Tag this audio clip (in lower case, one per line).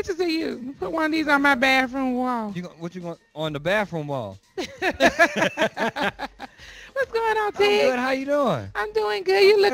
speech